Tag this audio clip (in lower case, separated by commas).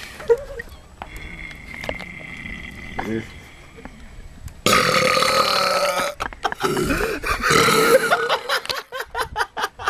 people burping, eructation